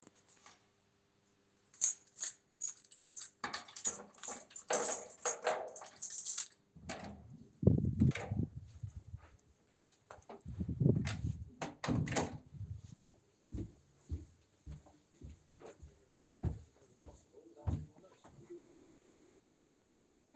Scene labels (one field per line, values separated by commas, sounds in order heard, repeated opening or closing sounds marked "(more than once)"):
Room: hallway, kitchen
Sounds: keys, door (more than once), footsteps